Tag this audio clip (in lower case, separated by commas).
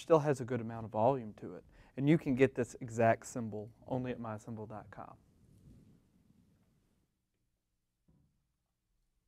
hi-hat, speech, music